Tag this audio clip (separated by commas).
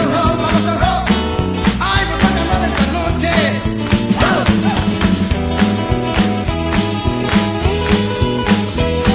Music, Rock and roll